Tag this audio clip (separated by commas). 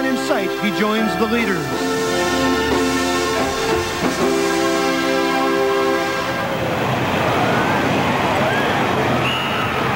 Vehicle, Speech, Music